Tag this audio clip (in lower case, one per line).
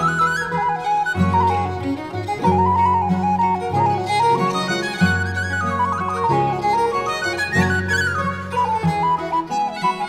fiddle
music
musical instrument